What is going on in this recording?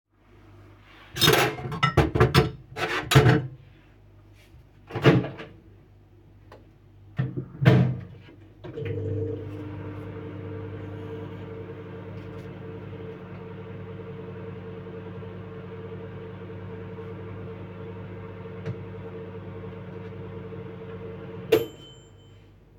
Dishes are moved while the microwave door is opened and closed and the microwave is started and finished